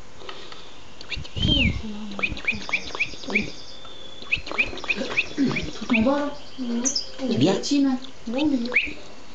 A bird is chirping several times and people are talking quietly